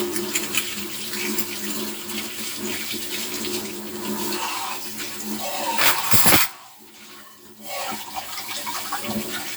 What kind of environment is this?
kitchen